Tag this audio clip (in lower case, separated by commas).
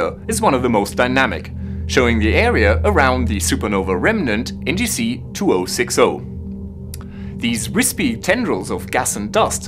speech, music